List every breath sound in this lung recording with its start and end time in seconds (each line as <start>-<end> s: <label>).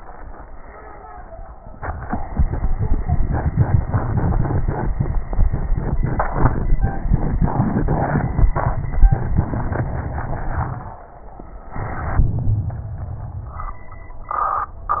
12.20-13.85 s: inhalation